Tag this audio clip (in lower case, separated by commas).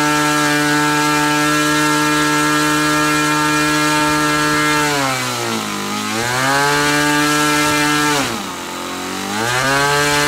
vroom, engine, vehicle